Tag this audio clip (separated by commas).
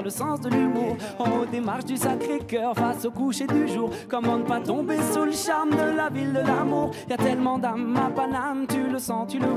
Music